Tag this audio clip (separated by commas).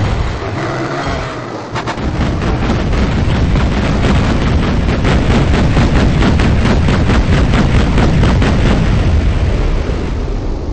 Run